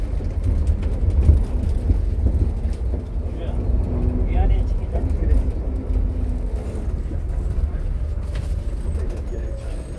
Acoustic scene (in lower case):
bus